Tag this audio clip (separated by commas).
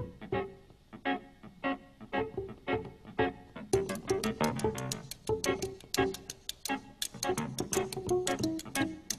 Music